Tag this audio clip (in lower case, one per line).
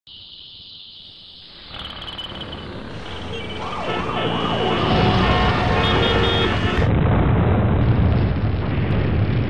explosion